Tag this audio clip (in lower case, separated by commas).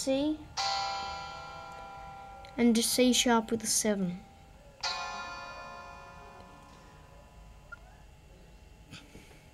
music, speech